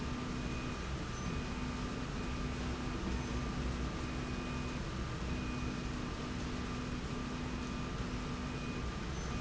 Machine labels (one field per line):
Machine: slide rail